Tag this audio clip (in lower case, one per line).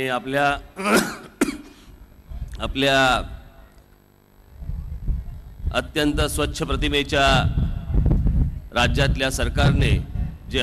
speech
male speech
monologue